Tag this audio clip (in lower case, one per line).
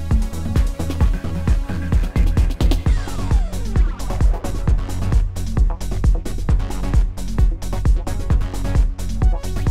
music